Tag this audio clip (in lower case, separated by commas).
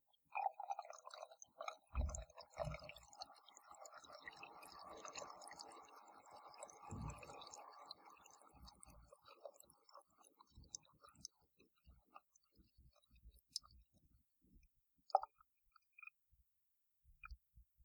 home sounds, faucet